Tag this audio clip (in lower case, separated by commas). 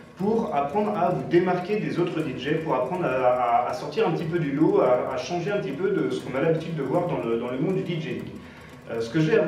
speech